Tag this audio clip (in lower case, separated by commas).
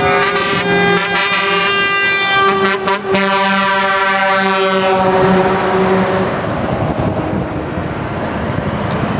air brake, truck, vehicle